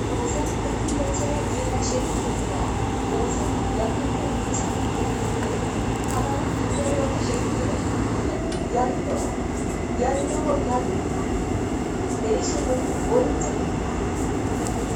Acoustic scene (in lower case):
subway train